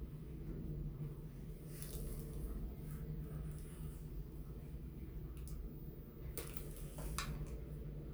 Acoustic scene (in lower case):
elevator